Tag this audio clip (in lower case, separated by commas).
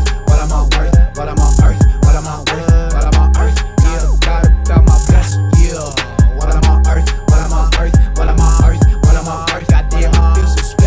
music, pop music, rhythm and blues, independent music